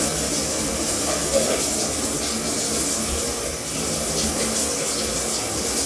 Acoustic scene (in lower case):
restroom